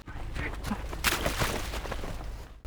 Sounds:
splatter
liquid
water

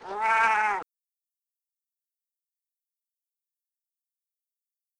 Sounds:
meow
animal
cat
pets

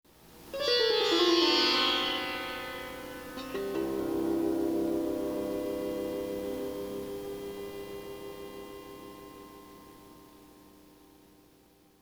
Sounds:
musical instrument
plucked string instrument
music

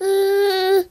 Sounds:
human voice
speech

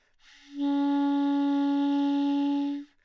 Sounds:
musical instrument
music
wind instrument

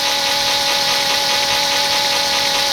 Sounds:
tools

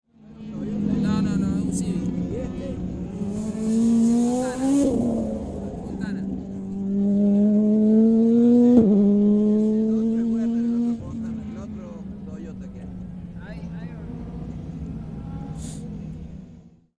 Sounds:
vehicle
motor vehicle (road)
car
auto racing

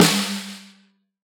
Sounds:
percussion
musical instrument
snare drum
music
drum

